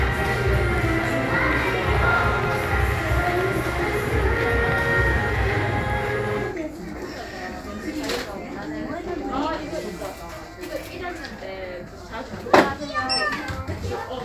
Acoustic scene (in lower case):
crowded indoor space